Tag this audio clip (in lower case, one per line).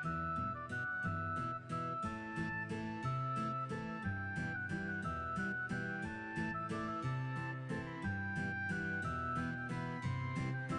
music